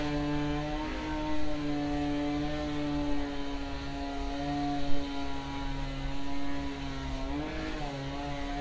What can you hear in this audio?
unidentified powered saw